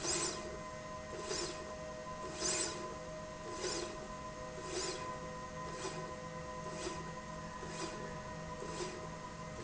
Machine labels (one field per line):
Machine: slide rail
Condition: normal